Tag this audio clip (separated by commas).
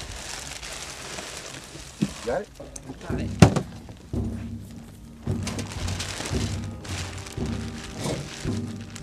Crackle